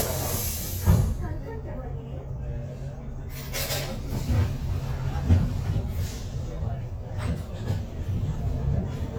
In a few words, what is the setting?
bus